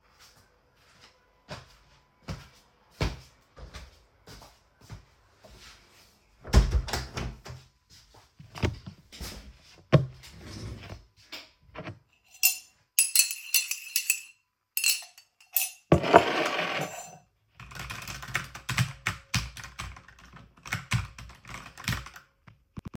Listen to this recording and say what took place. I went to my window to close it, sat down, stured up my tea with a spoon started typing on my keyboard.